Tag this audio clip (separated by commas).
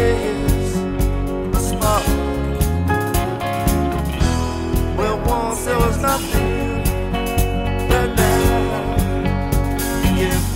Speech, Music